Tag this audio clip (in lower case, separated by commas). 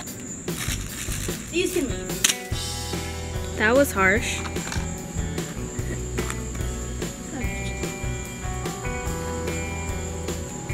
music, speech